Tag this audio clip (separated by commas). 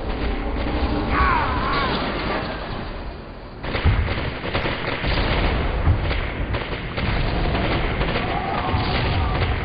Boom, Music